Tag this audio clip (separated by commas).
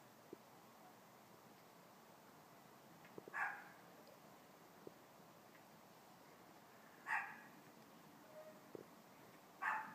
pets, Dog, Silence, Animal